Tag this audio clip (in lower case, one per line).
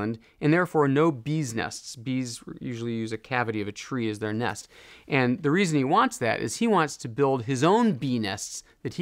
speech